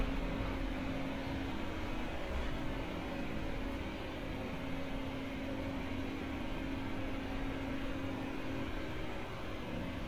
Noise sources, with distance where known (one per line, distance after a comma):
large-sounding engine, near